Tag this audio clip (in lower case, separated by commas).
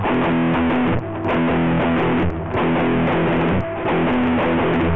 plucked string instrument, guitar, music, musical instrument